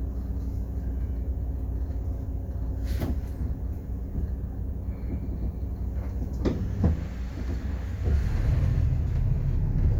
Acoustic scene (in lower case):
bus